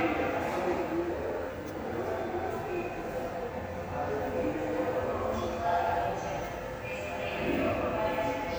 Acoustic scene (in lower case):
subway station